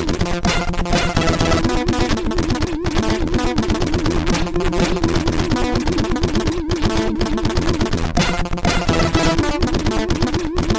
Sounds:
music

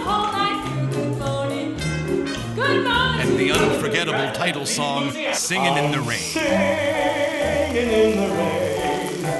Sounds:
speech, music, rain on surface

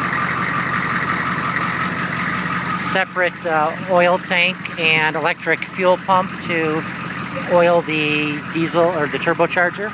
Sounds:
speech, vehicle

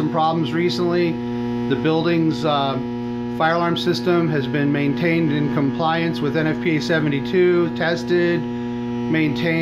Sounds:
speech

